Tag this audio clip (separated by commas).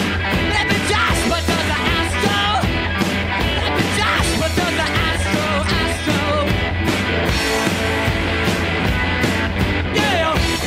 Music